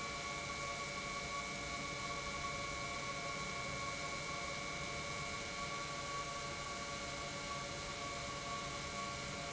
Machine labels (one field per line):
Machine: pump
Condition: normal